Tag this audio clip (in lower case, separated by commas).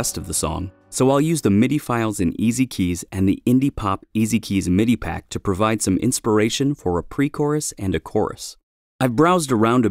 speech